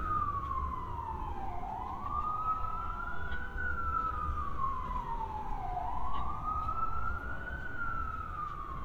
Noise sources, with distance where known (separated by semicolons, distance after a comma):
siren, near